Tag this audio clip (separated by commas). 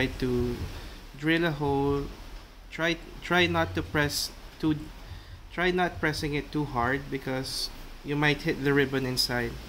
Speech